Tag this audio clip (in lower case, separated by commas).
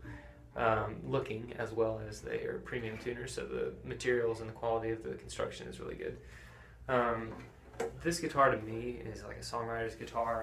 speech